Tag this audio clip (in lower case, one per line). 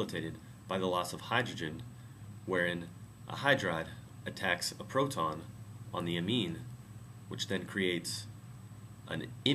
speech